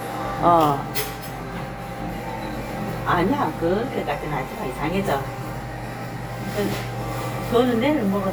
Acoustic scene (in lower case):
crowded indoor space